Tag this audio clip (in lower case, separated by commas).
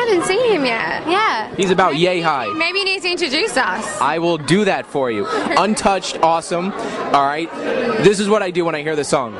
speech